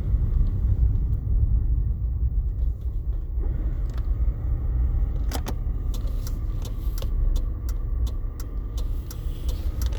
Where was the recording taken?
in a car